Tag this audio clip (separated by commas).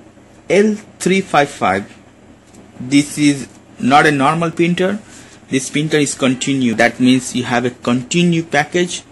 Speech